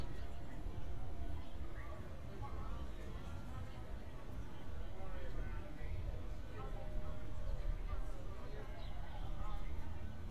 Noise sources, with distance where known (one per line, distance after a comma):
person or small group talking, far